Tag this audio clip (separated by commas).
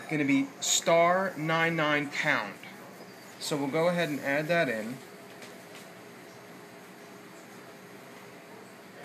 Speech